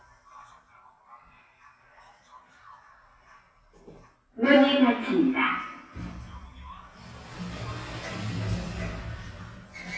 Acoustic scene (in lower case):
elevator